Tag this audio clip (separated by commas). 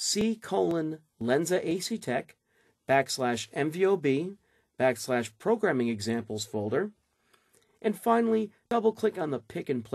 Speech